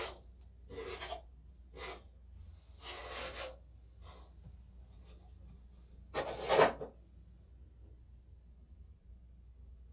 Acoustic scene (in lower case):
restroom